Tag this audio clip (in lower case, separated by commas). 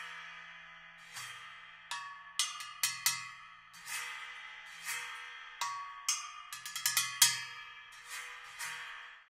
music, percussion